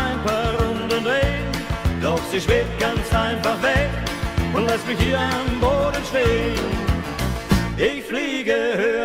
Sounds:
music

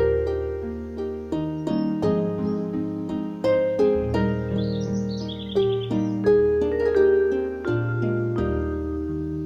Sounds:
lullaby, music

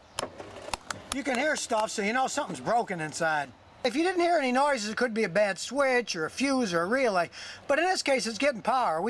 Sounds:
speech

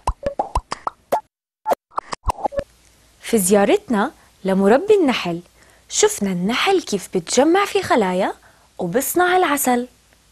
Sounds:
speech

